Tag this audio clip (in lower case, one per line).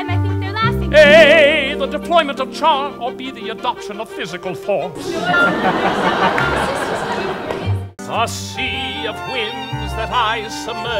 music